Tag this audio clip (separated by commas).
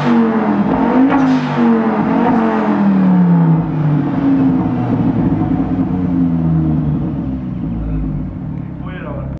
outside, urban or man-made